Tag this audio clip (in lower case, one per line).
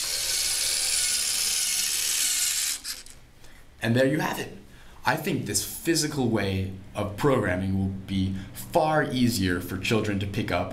speech
inside a small room